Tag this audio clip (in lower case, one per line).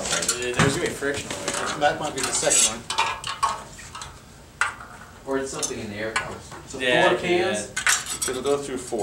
speech